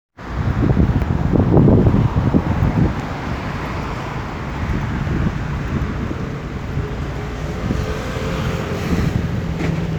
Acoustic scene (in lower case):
street